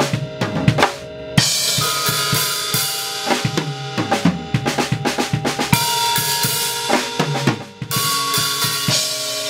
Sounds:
Drum kit, Drum, Music, Musical instrument, Rimshot, Cymbal, Snare drum, Hi-hat, Percussion

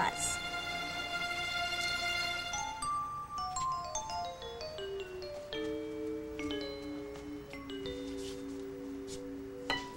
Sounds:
Music

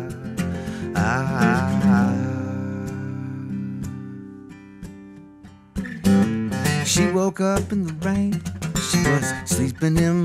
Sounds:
Music, Plucked string instrument, Guitar, Acoustic guitar, Musical instrument, Strum

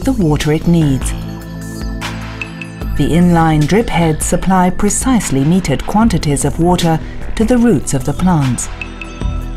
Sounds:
Speech, Music

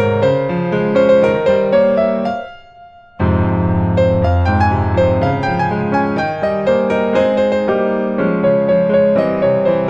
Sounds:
Music

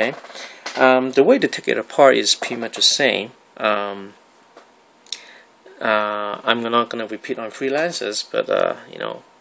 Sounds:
Speech

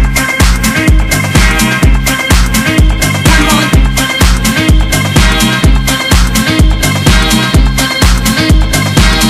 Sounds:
Music

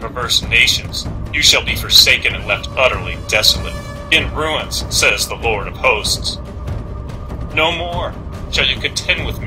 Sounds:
Music, Speech

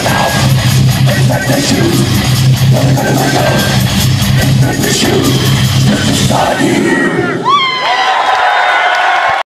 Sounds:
Music, Singing, Rock music

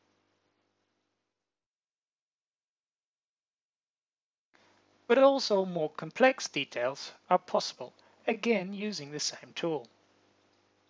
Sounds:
Speech

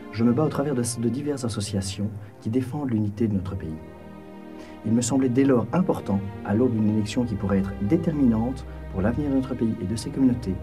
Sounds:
Music, Speech

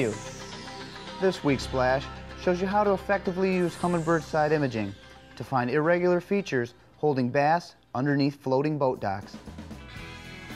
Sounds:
Speech, Music

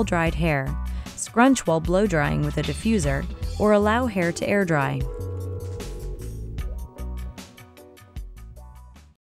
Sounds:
Speech, Music

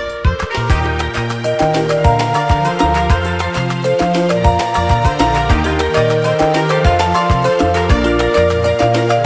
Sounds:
Music

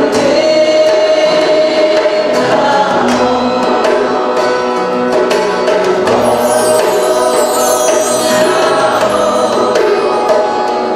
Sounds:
Music, Mantra

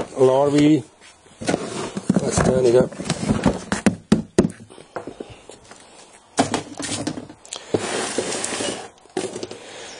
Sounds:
inside a small room, Speech

